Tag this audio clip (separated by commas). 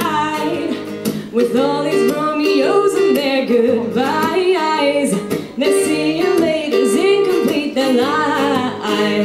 Female singing, Music